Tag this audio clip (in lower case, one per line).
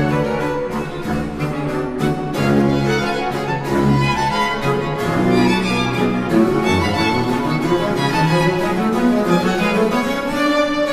orchestra
violin
string section
bowed string instrument
musical instrument
music